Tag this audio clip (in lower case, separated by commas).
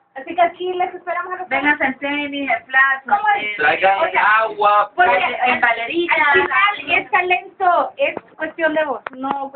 speech